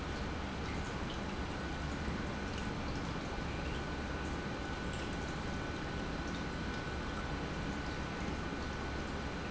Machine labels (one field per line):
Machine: pump